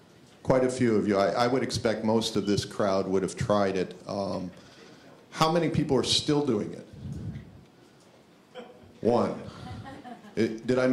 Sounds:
speech

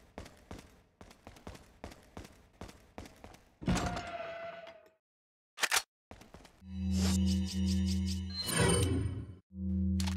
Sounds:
music

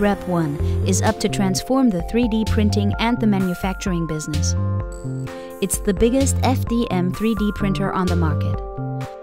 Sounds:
speech, music

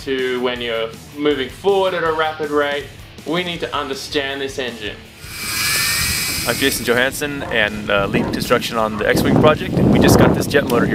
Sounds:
speech, music

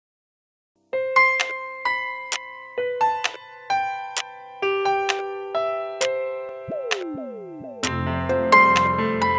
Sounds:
music, pop music, electric piano

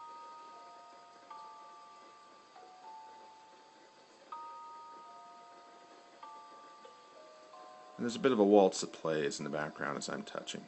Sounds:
speech, music

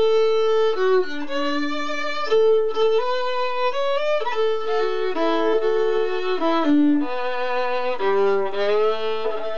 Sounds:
music, musical instrument, violin

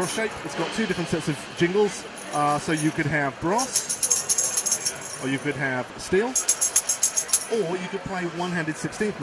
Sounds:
music, speech

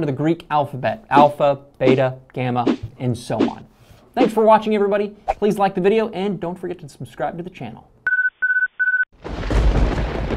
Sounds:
speech, inside a small room

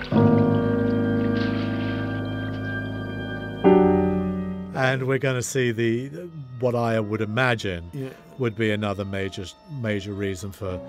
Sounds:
music, speech

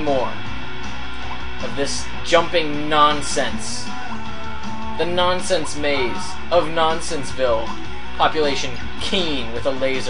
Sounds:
music, speech

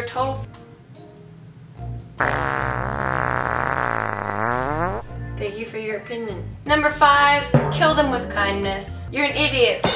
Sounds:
inside a small room, speech, music

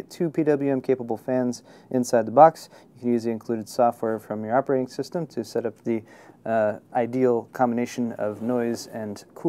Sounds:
speech

